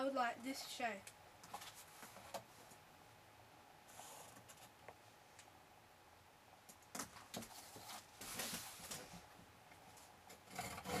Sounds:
Speech

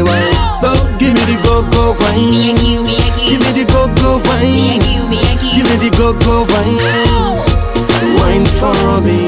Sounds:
Music

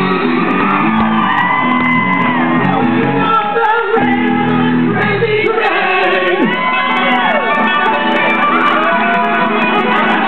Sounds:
Musical instrument, Guitar, Strum, Music, Plucked string instrument, Acoustic guitar, Electric guitar

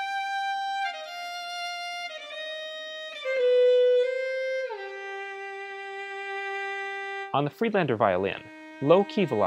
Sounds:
Speech, Music, Musical instrument

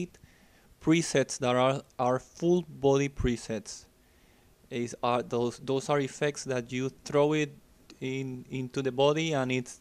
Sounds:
Speech

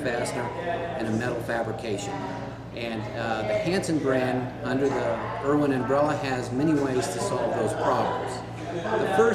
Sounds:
Speech

